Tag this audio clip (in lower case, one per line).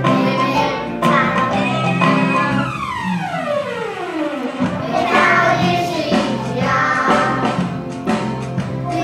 music